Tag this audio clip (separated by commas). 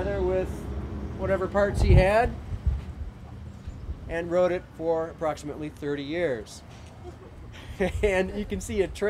Speech